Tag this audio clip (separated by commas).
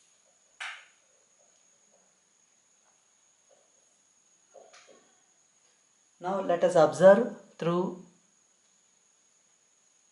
Silence, Speech